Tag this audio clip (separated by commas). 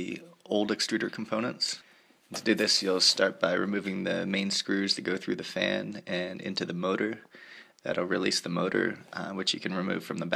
Speech